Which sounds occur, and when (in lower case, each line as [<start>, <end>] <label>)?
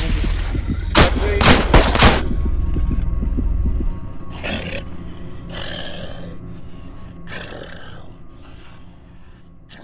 [0.00, 9.83] music
[0.00, 9.83] video game sound
[0.83, 2.33] gunfire
[1.16, 1.69] male speech
[1.72, 2.17] generic impact sounds
[3.59, 3.86] heartbeat
[8.21, 9.49] breathing
[9.65, 9.83] growling